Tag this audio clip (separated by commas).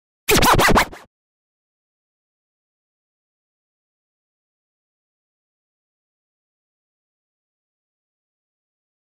Silence